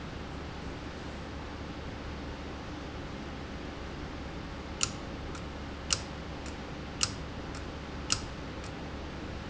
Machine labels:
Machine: valve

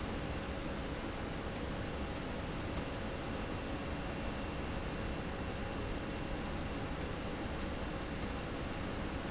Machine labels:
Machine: slide rail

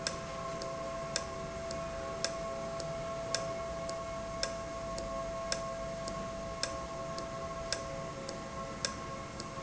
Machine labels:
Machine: valve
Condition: normal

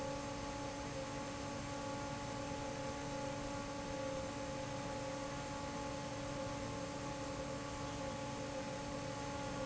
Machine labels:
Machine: fan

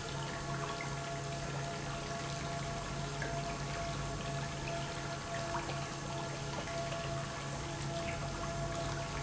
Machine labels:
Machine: pump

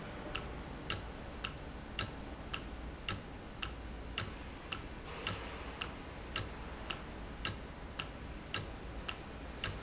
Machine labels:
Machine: valve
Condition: normal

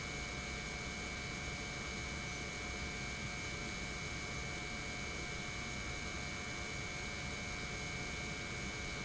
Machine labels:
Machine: pump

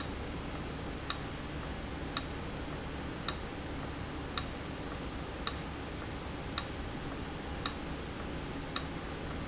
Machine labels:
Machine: valve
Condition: abnormal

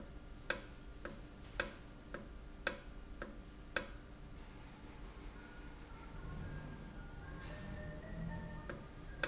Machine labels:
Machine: valve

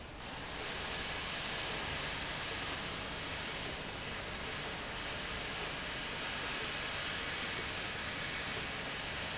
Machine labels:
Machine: slide rail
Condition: normal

